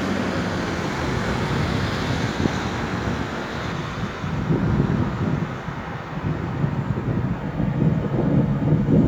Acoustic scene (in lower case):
street